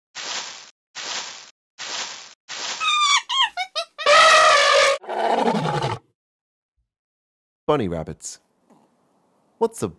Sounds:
Speech

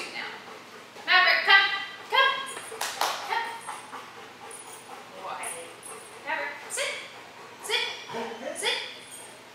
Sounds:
Speech

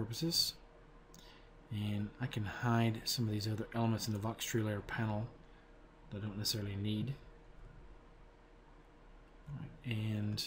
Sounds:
Speech

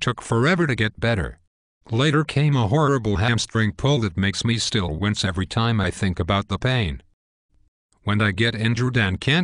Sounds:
Speech

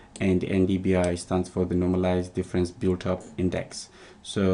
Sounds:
Speech

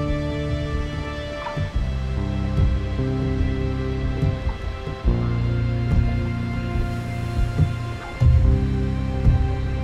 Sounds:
Music

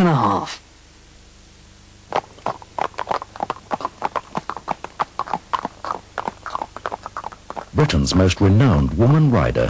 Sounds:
Speech

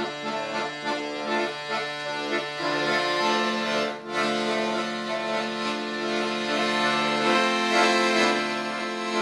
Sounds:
Accordion, playing accordion, Music

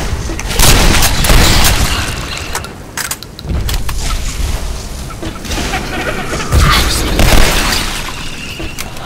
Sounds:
inside a large room or hall, Fusillade

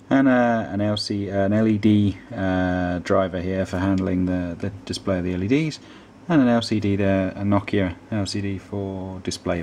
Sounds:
Speech

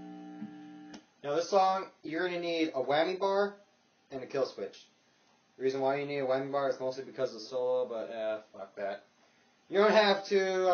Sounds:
Speech

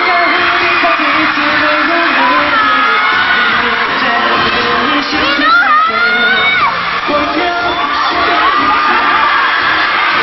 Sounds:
Music, Speech

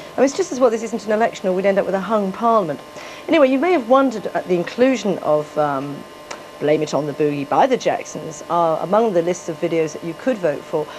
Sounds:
Speech

